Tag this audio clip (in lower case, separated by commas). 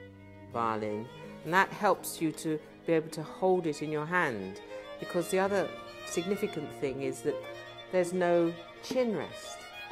violin, speech, musical instrument, music